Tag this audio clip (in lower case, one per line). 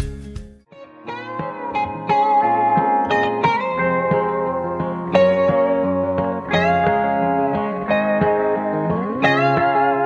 music
steel guitar